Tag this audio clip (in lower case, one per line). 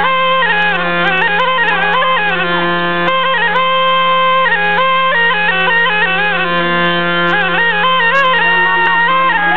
speech
outside, rural or natural
music